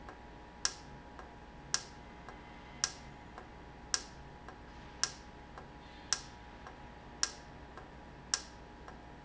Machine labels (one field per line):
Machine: valve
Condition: normal